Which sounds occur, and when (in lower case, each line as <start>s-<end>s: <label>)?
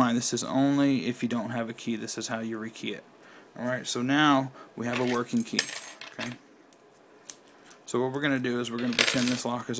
0.0s-9.7s: background noise
0.0s-3.0s: man speaking
3.2s-3.4s: breathing
3.5s-4.5s: man speaking
3.6s-3.8s: surface contact
4.5s-4.6s: breathing
4.6s-5.6s: man speaking
5.2s-6.3s: generic impact sounds
6.6s-6.7s: generic impact sounds
6.9s-6.9s: surface contact
7.2s-7.4s: generic impact sounds
7.6s-7.7s: generic impact sounds
7.8s-9.7s: man speaking
8.1s-8.2s: generic impact sounds
8.8s-9.4s: generic impact sounds